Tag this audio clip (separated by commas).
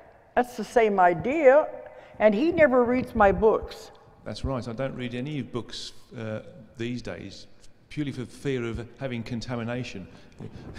Speech